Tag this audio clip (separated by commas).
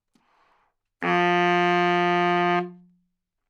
woodwind instrument, Musical instrument, Music